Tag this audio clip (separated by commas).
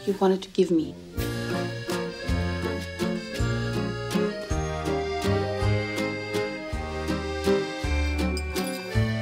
Music, Speech